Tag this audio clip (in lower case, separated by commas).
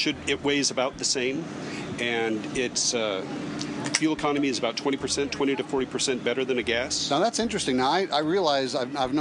speech